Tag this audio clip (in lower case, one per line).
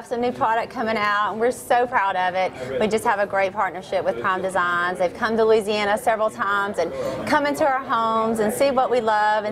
speech